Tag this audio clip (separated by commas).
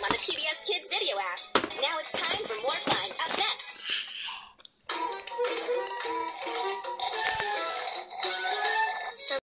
Speech, Music